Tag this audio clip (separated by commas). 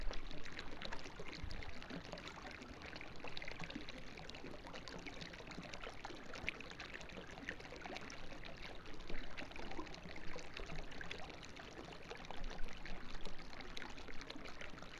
Stream, Water